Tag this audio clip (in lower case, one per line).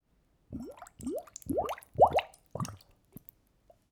water
liquid